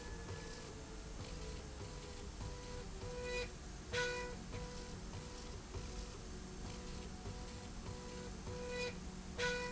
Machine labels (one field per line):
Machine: slide rail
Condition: normal